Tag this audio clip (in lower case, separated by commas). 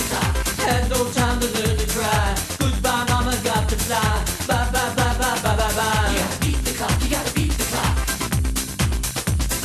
music